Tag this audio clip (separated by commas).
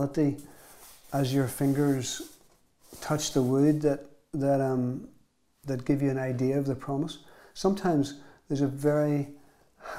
Speech